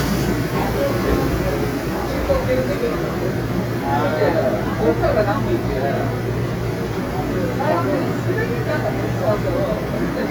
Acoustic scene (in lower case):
subway train